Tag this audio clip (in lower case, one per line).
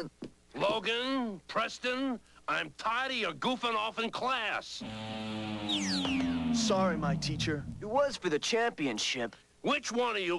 speech